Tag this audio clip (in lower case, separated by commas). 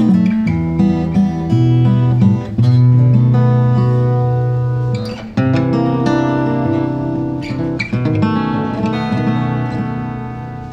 acoustic guitar, music